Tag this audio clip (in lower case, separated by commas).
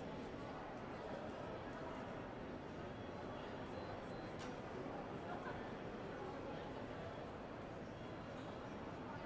speech